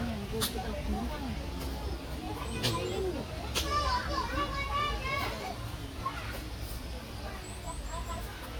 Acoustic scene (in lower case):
park